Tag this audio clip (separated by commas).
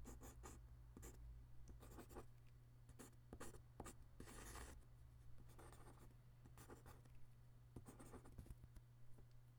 Writing, home sounds